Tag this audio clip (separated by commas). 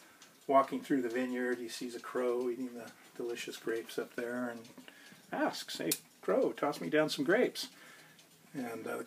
Speech, Tick